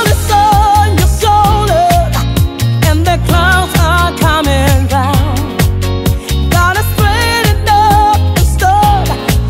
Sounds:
Music

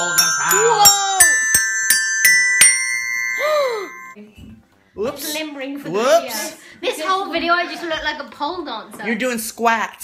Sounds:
Music, Speech, inside a small room

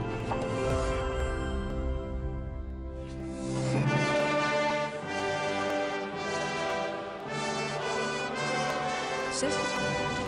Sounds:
Speech, Music, Television

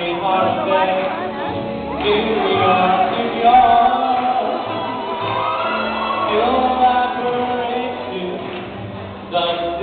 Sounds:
Speech, Music, Male singing

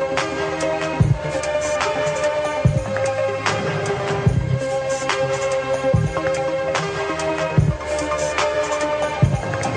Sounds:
Music

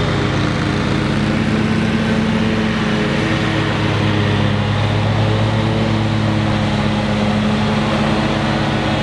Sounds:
lawn mowing

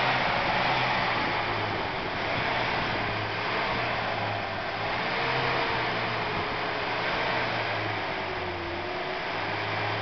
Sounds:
Vehicle, Truck

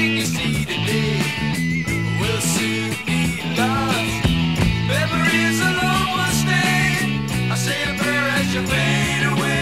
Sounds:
Music

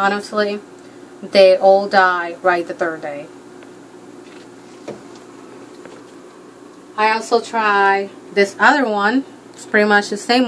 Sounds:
Speech

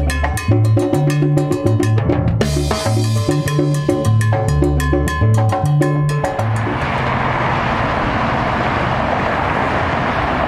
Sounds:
outside, urban or man-made, Music

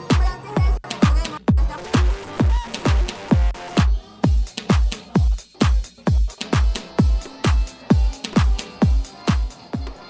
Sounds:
Speech, Music

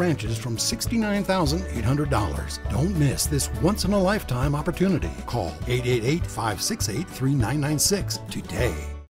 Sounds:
Speech, Music

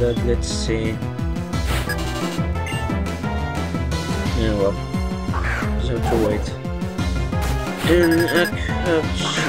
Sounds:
Music, Speech

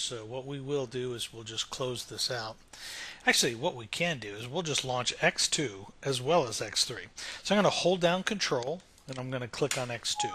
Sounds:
Speech

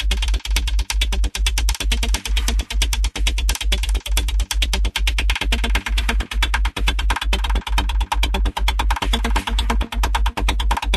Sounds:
Electronic music, Music

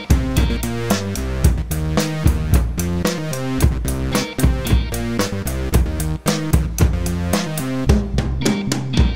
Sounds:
playing drum kit, Drum, Bass drum, Drum kit, Musical instrument, Exciting music, Music

